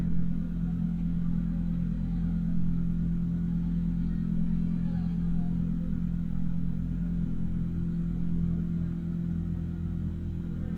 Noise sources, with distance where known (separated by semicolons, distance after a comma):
medium-sounding engine